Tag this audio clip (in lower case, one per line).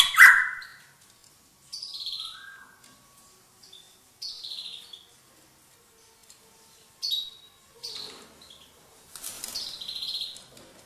bird squawking